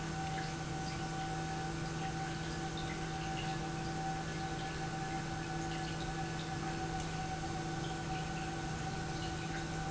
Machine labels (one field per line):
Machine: pump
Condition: normal